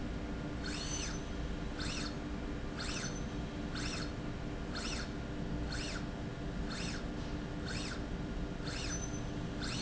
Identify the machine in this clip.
slide rail